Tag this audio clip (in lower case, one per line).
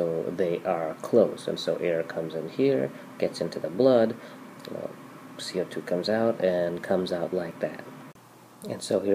speech